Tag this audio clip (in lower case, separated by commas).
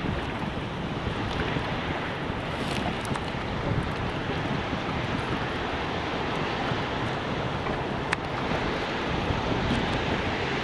boat, ship, ocean, ocean burbling, vehicle